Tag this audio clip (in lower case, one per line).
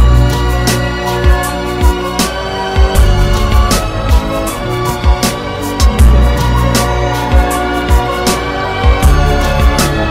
music